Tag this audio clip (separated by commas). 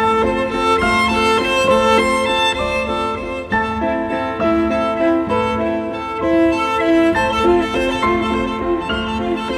Music, Bowed string instrument, fiddle